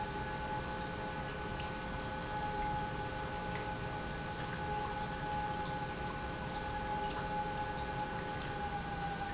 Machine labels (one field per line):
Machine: pump